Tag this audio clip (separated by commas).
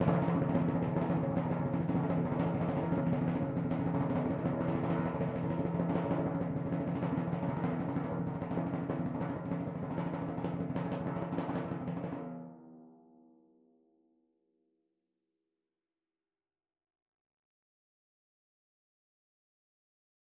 Musical instrument, Percussion, Music, Drum